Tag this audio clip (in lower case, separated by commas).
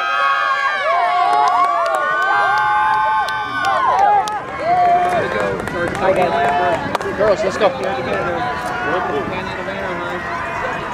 run, speech, outside, urban or man-made